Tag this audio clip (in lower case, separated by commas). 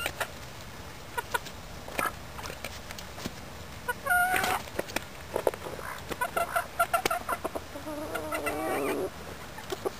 fowl, animal, chicken